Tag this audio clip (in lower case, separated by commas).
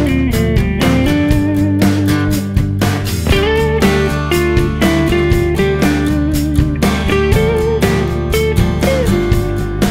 music